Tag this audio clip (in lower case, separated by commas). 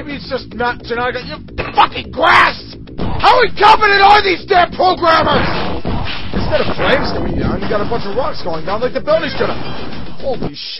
music, speech, outside, urban or man-made